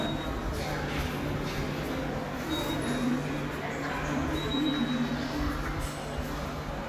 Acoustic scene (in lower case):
subway station